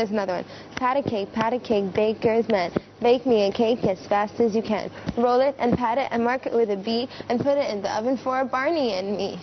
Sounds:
Speech, Female singing

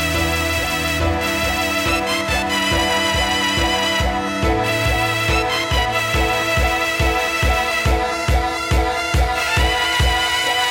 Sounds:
Soundtrack music, Music, Background music, Exciting music

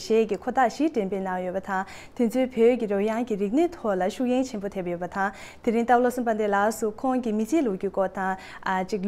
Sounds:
Speech

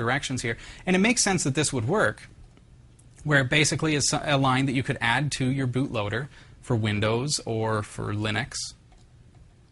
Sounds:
Speech

